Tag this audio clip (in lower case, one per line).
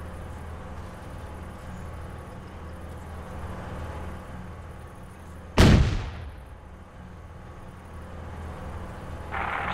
speech